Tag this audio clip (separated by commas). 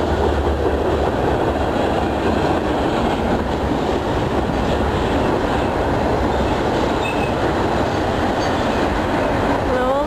train wagon, Speech